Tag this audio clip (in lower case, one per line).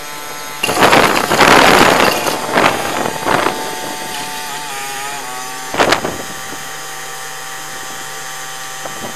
vehicle